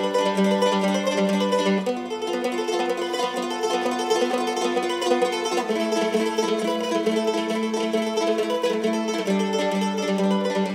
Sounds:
musical instrument, music, mandolin, plucked string instrument

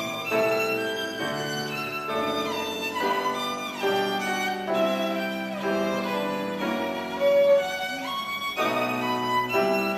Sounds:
music, musical instrument, violin

